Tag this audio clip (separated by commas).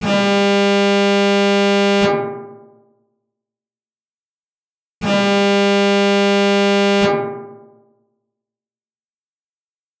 Alarm